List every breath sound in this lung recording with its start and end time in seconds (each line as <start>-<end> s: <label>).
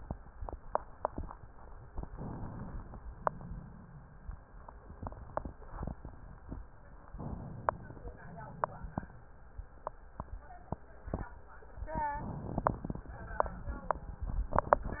2.07-3.00 s: inhalation
3.00-4.12 s: exhalation
7.10-8.22 s: inhalation
8.22-9.15 s: exhalation
12.20-13.13 s: inhalation